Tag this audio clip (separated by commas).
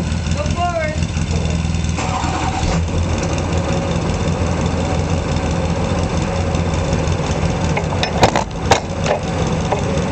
Truck, Vehicle